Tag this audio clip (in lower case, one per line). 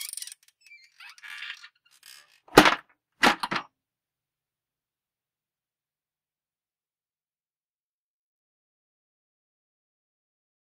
opening or closing car doors